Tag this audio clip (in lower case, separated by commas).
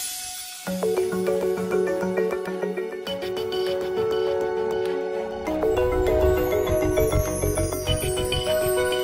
music